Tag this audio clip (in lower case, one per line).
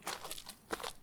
footsteps